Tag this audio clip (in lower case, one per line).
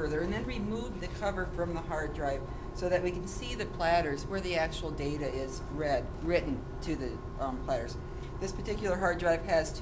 speech